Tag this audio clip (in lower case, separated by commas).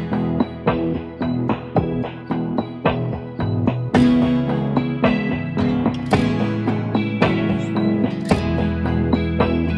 dinosaurs bellowing